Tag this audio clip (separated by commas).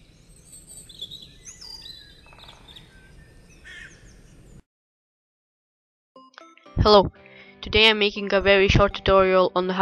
Speech, outside, rural or natural, bird song, Music